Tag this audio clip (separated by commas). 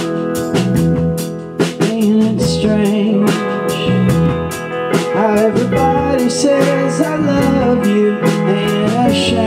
Music